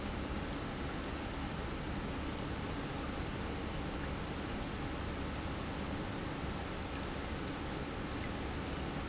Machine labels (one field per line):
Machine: pump